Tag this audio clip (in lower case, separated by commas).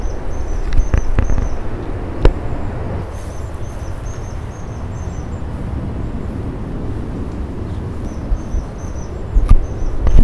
animal, bird, wild animals, bird vocalization